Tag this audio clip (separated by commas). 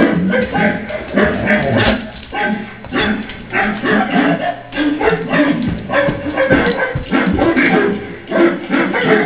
Animal, Dog, pets, Bow-wow